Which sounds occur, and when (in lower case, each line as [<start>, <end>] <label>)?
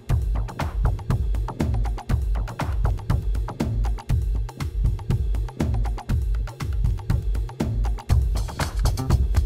[0.01, 9.45] music